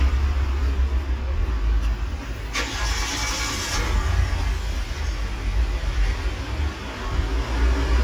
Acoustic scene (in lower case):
street